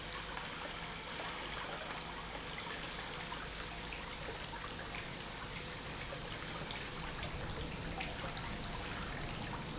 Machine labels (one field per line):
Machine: pump